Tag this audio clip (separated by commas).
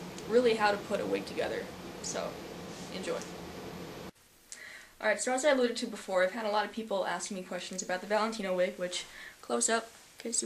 Speech